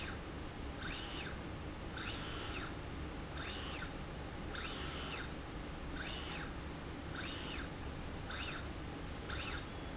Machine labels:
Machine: slide rail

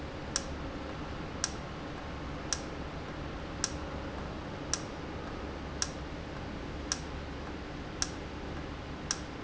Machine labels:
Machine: valve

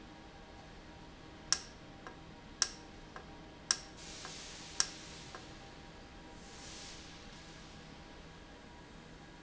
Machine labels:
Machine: valve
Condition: normal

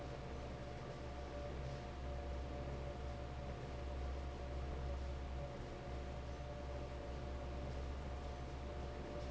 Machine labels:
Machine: fan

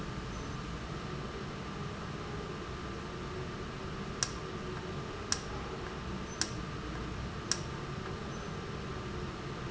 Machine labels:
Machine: valve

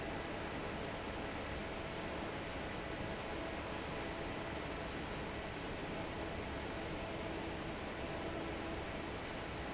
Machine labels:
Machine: fan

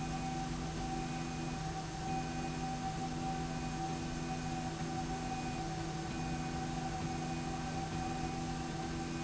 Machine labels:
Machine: slide rail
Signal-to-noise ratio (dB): -6 dB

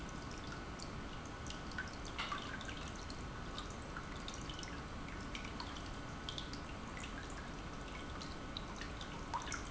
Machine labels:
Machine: pump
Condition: normal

